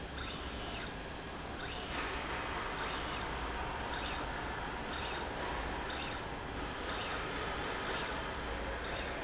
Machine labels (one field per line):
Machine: slide rail